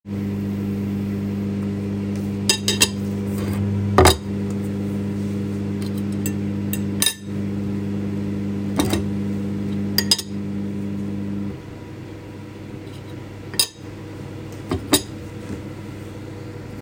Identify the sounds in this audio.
microwave, cutlery and dishes